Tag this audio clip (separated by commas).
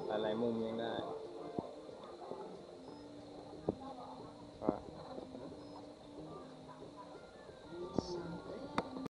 Speech